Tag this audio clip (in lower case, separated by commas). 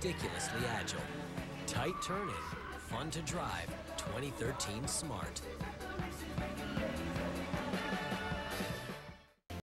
speech, car, vehicle, skidding, motor vehicle (road), music